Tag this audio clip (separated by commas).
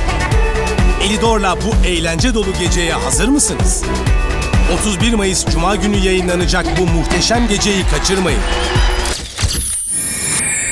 Speech, Music